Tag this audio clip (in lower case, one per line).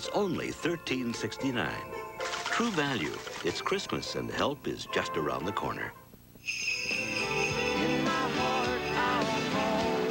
music
speech